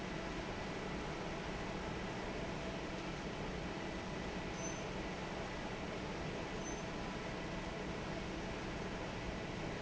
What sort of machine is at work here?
fan